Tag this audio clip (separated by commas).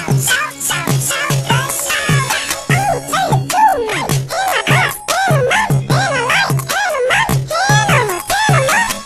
Music